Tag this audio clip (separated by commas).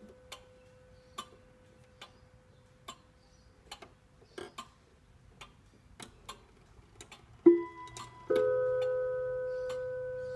Tick-tock